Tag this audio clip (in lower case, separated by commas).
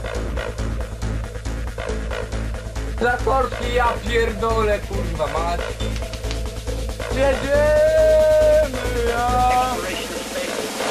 music, speech, techno